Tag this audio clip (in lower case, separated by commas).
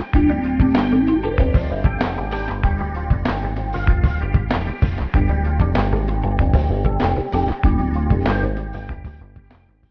music